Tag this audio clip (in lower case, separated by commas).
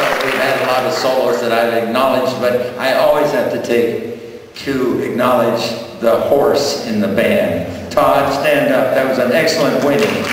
speech